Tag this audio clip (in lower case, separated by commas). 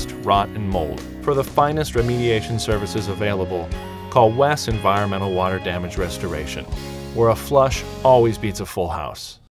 music, speech